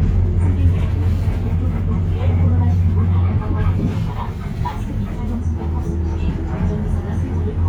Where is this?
on a bus